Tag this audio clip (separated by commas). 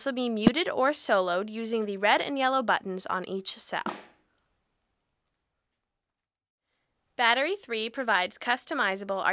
Speech